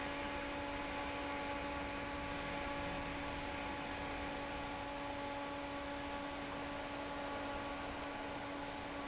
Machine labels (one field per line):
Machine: fan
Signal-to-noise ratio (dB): 0 dB